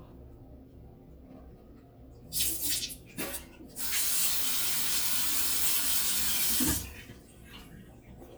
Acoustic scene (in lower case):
restroom